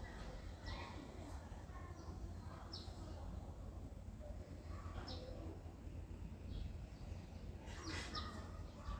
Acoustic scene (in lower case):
residential area